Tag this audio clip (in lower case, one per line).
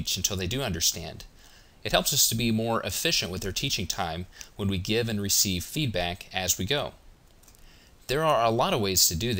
speech